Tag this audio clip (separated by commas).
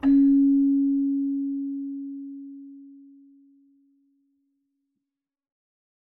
Musical instrument, Music, Keyboard (musical)